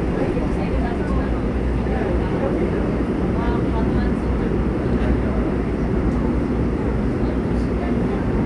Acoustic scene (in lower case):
subway train